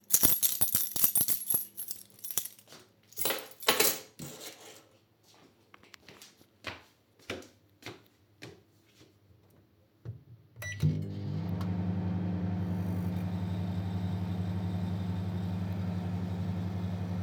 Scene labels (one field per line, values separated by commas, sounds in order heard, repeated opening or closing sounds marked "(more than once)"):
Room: kitchen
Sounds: keys, footsteps, microwave